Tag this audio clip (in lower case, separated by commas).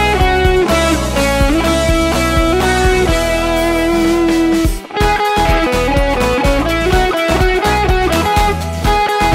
musical instrument, music, guitar